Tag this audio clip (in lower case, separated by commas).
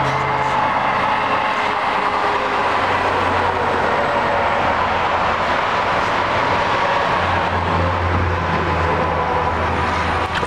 motorboat, vehicle